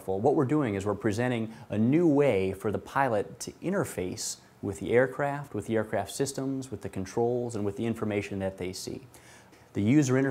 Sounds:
Speech

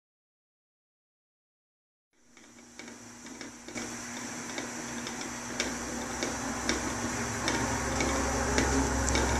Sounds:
Mechanical fan

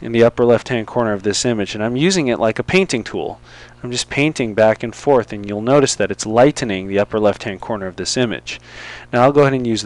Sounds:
Speech

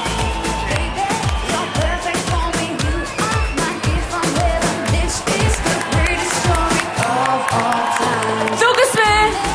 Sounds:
Music

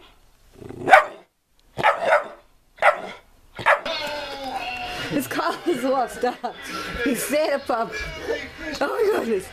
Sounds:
Speech, Domestic animals, inside a small room, Animal, Dog

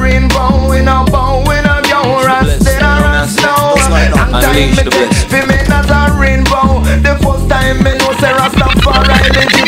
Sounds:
Music

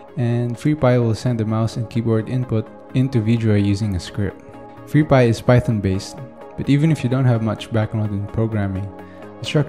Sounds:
Speech, Music

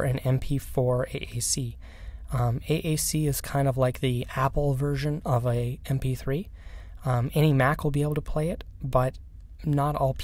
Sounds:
Narration, Speech

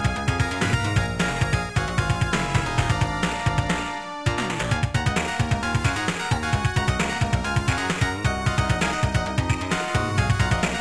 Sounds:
Music, Video game music

